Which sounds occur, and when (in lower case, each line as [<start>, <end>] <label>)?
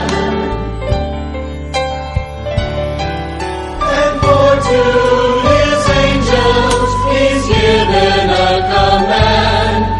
[0.00, 9.95] music
[3.75, 9.95] woman speaking